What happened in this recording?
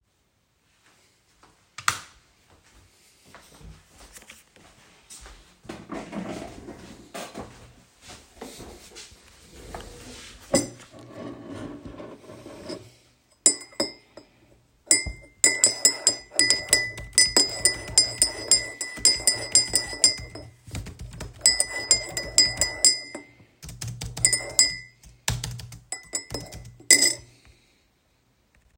I turn the light on, I pull my desk chair, I sit on it, I start typing on my keyboar while sturing my tee.